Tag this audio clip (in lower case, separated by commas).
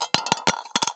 home sounds, coin (dropping)